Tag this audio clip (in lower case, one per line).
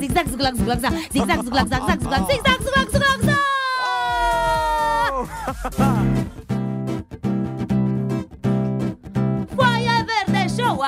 music